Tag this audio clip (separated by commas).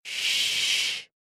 Hiss